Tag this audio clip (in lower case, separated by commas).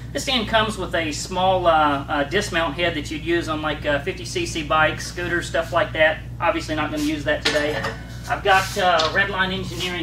speech